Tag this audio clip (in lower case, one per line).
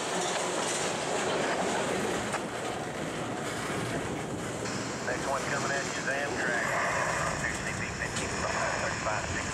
clickety-clack
railroad car
rail transport
train